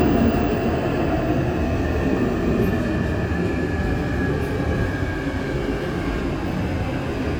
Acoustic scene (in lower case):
subway train